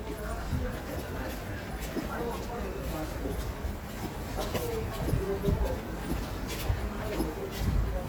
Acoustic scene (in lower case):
subway station